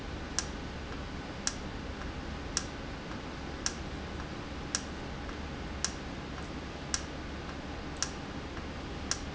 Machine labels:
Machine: valve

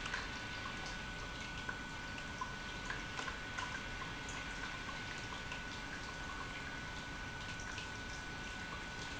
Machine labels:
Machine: pump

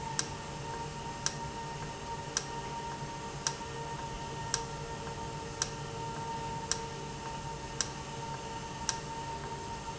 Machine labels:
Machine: valve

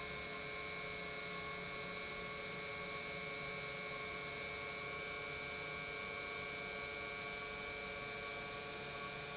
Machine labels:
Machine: pump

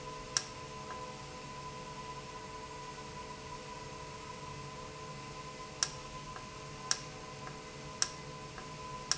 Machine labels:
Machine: valve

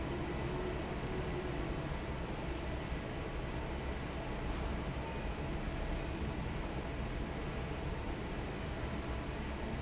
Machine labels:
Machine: fan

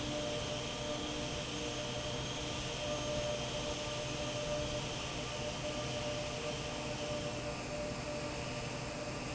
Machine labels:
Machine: fan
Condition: normal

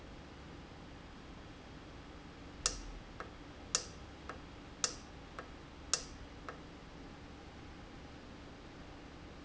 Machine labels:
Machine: valve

